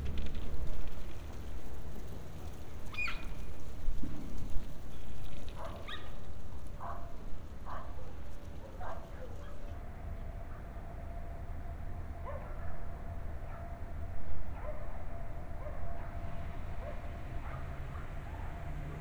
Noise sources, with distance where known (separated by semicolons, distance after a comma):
dog barking or whining